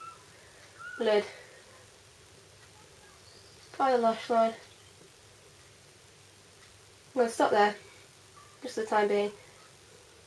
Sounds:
speech, inside a small room

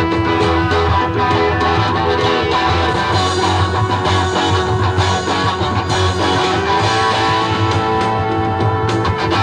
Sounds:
music, rock music, electric guitar

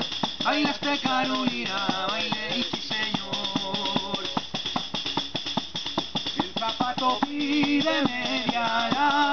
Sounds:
playing tambourine

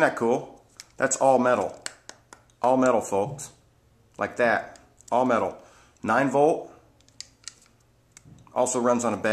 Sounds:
speech

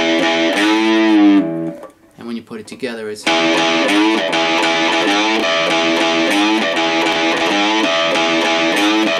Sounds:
plucked string instrument, music, guitar, musical instrument

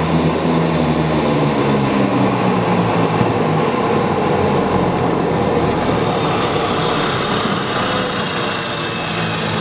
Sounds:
aircraft, fixed-wing aircraft, vehicle

